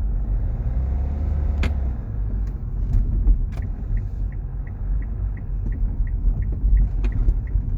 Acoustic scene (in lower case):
car